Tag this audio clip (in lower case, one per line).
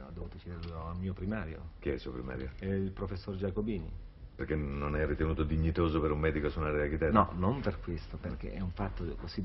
speech